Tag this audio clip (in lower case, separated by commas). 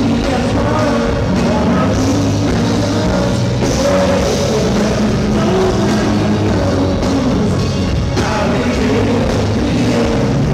music